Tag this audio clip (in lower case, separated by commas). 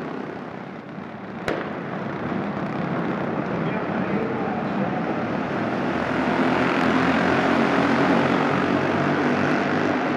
vehicle, car, auto racing, inside a public space